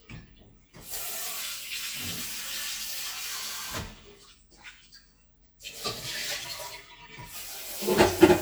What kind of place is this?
kitchen